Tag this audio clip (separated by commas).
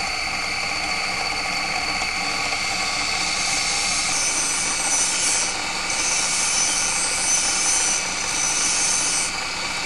Blender